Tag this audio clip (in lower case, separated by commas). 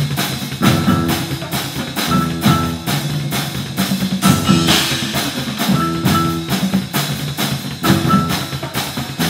percussion, music